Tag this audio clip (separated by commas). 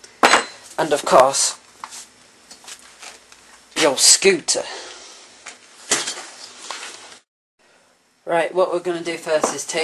Speech